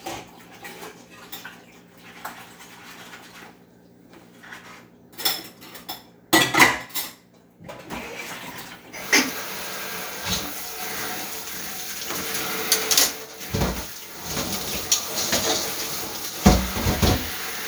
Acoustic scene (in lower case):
kitchen